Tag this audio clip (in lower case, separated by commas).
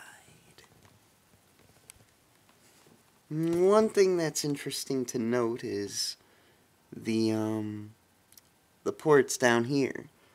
people whispering, whispering